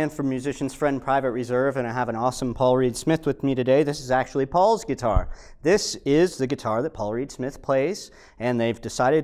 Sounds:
Speech

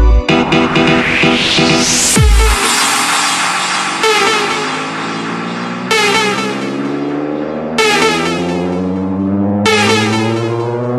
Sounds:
Music

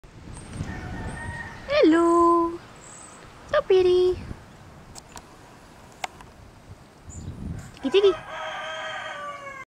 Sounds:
Speech

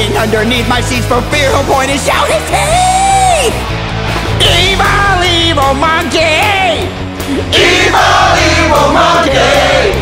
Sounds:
Music

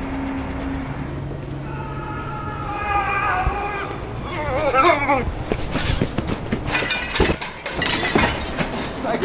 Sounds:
Speech

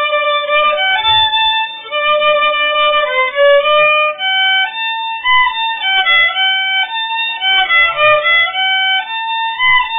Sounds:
Musical instrument, Music, Violin

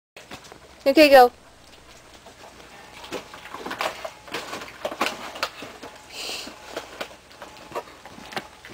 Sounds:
Speech

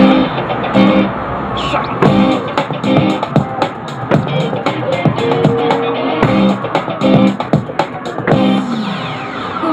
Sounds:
Music

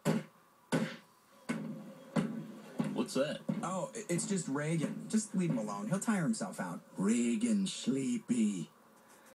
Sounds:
Speech

